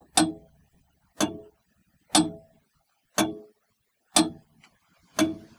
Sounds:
Mechanisms, Clock

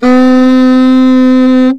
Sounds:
Musical instrument, woodwind instrument, Music

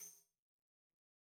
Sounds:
Percussion, Tambourine, Musical instrument, Music

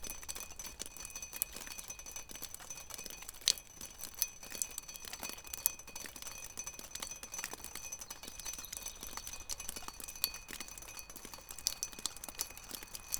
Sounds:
Drip, Liquid

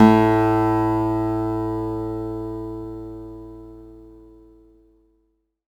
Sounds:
Plucked string instrument, Acoustic guitar, Guitar, Musical instrument, Music

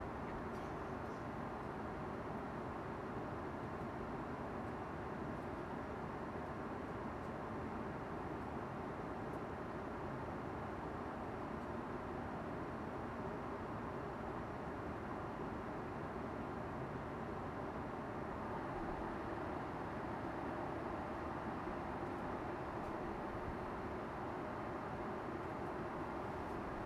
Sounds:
Aircraft, Vehicle

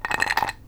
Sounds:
Glass

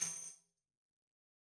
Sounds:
Music, Tambourine, Musical instrument, Percussion

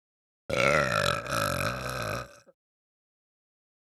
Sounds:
Burping

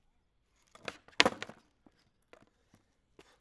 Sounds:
Skateboard, Vehicle

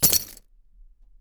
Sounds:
Keys jangling, Domestic sounds

